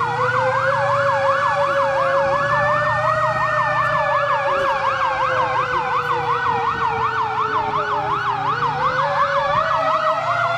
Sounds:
fire truck siren

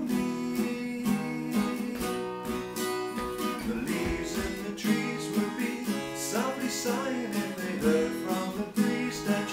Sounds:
Acoustic guitar, Musical instrument, Music, Plucked string instrument, Guitar

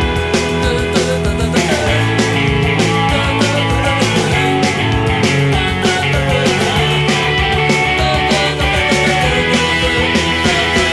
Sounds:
Progressive rock

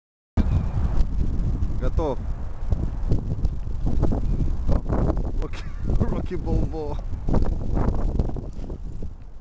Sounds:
Speech

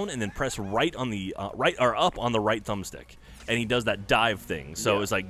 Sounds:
Speech

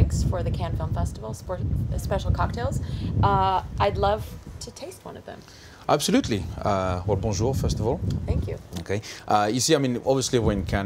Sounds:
Speech

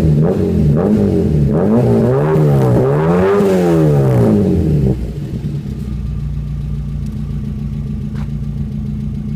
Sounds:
Vehicle, Car

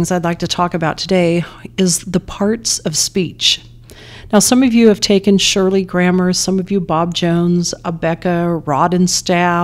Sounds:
Speech, monologue, Female speech

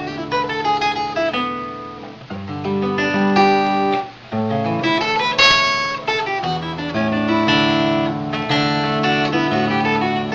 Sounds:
Music, Guitar, Strum, Musical instrument, Plucked string instrument

